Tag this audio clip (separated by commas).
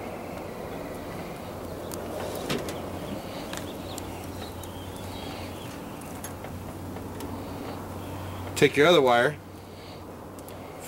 Speech